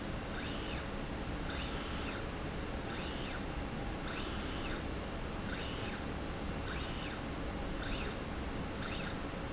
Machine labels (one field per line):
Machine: slide rail